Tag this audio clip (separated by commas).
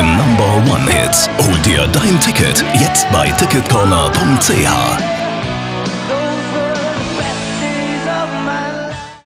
Music, Speech